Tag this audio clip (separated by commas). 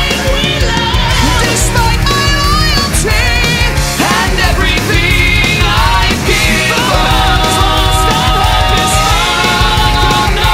Progressive rock, Music